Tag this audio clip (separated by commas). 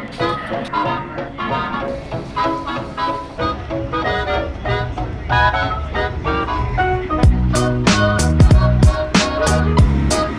Music